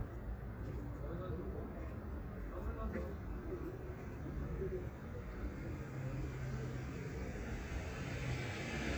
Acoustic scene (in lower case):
residential area